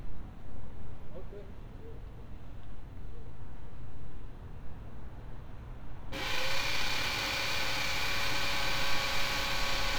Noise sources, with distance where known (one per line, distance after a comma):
small or medium rotating saw, near
person or small group talking